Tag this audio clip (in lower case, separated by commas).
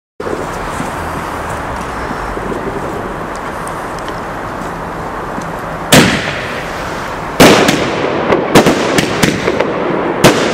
fireworks, fireworks banging